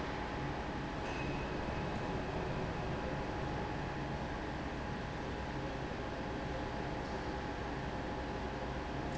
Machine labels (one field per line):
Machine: fan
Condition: abnormal